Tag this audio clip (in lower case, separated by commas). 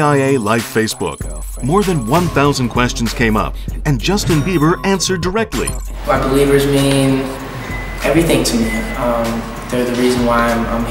background music, music, speech